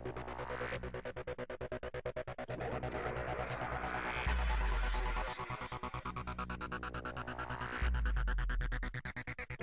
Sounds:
Music

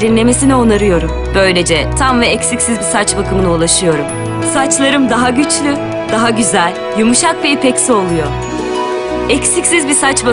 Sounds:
Music, Speech

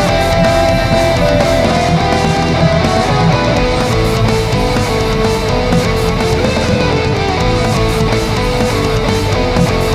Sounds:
Musical instrument, Music, Strum, Plucked string instrument, playing electric guitar, Guitar, Electric guitar

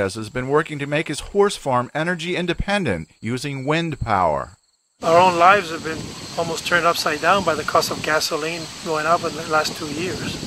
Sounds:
Speech, Wind noise (microphone), Rustling leaves

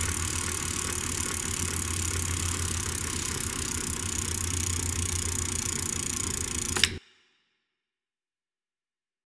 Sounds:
Vehicle, Bicycle

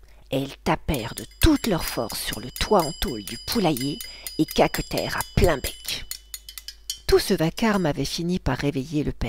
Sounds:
Speech

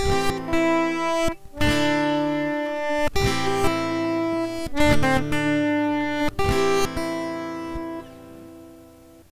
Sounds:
Music

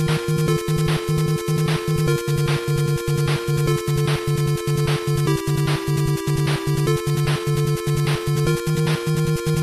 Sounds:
Theme music, Music

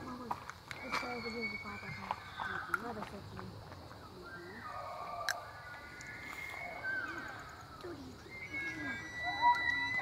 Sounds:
elk bugling

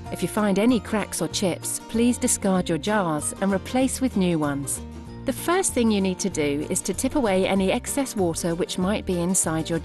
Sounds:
Speech, Music

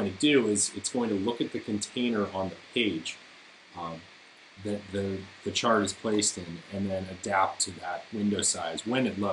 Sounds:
Speech

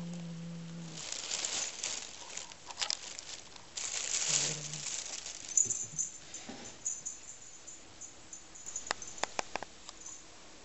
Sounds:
cat growling

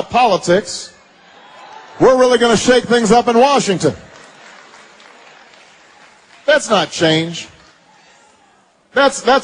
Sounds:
Speech

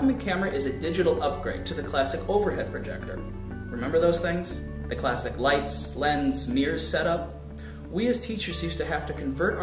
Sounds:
Music, Speech

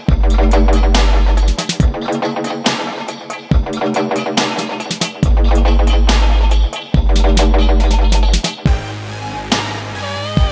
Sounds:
Music

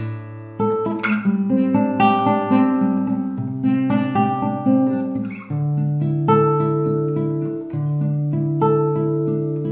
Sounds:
Music, Plucked string instrument, Guitar, Musical instrument

